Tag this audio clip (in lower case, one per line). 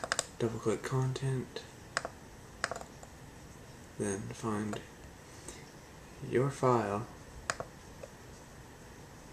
computer keyboard